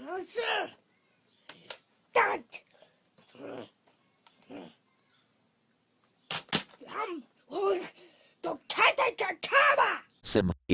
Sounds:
inside a small room, speech

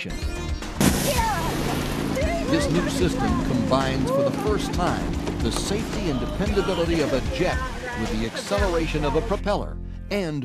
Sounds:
speech, music

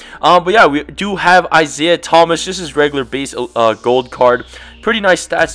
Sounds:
speech

